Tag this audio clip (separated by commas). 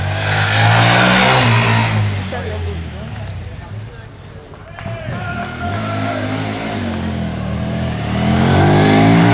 Speech